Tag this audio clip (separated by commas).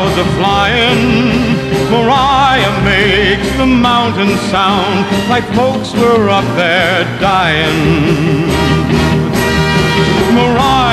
Music